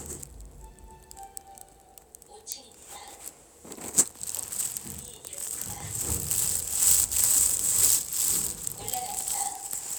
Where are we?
in an elevator